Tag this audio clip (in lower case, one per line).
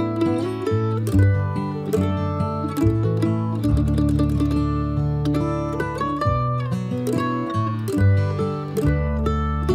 plucked string instrument
music